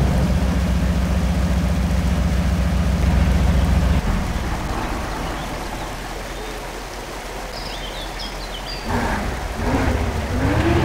As rain falls, birds chirp and a vehicle approaches